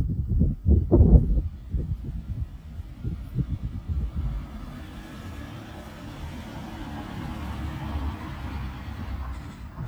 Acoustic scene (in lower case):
residential area